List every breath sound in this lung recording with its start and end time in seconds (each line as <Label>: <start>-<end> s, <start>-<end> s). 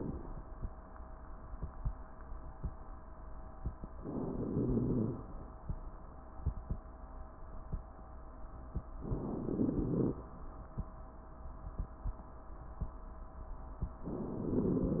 Inhalation: 3.99-4.51 s, 9.01-9.47 s
Exhalation: 4.51-5.28 s, 9.48-10.20 s
Wheeze: 4.49-5.26 s